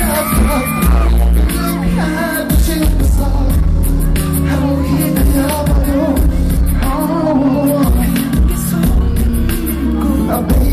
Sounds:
dance music, music

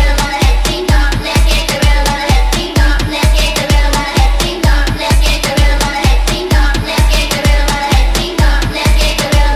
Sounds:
dance music, music

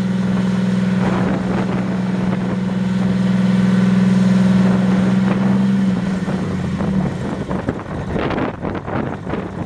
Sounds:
vehicle, truck

